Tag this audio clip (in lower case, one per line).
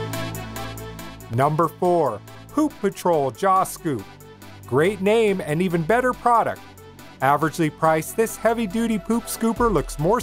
speech
music